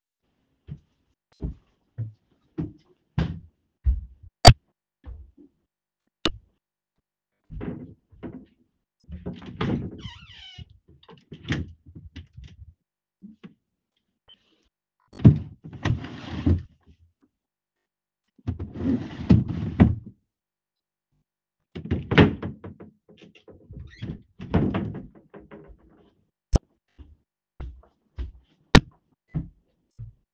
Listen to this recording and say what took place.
Walk to wardrobe, open door, open drawer, take trousers out, close drawer, close door of wardrobe